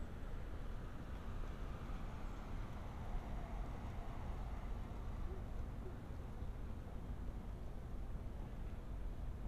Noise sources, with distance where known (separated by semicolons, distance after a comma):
background noise